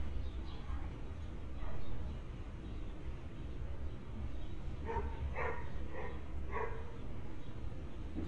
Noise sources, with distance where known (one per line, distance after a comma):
dog barking or whining, far